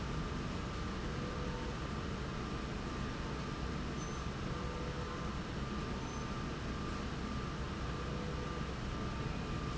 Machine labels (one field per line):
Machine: slide rail